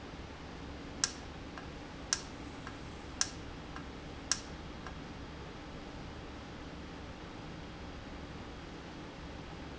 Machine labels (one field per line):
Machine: valve